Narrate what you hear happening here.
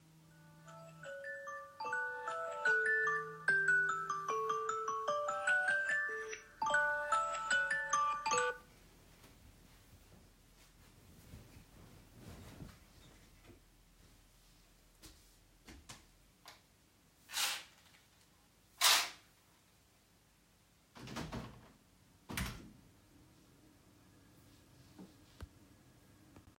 The alarm started ringing loudly in the room. I got up and turned it off then opened the balcony curtains then the balcony door .